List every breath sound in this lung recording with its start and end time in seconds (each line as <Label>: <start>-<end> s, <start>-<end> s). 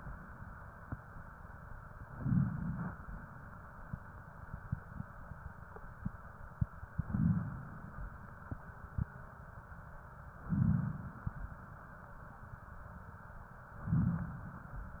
Inhalation: 2.03-2.91 s, 7.02-7.90 s, 10.47-11.35 s, 13.86-14.74 s